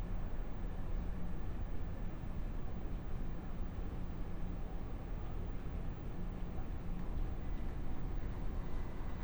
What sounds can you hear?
background noise